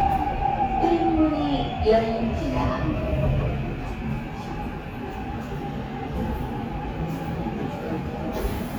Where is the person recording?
on a subway train